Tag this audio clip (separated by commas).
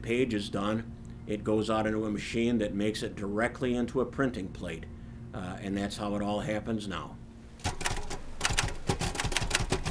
Speech, Typewriter